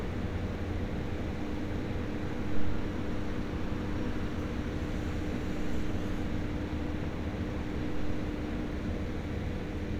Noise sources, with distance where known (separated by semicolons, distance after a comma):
engine of unclear size